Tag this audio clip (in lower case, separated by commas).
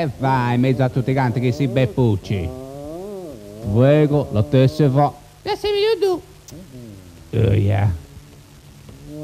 speech